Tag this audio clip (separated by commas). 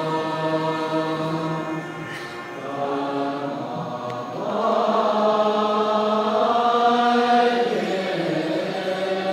Chant, Vocal music